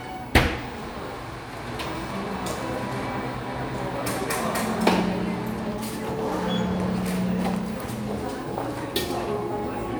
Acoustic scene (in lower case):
crowded indoor space